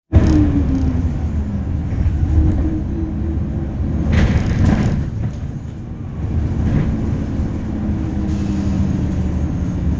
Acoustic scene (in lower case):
bus